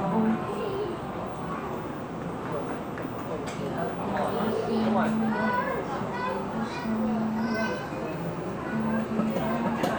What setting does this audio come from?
cafe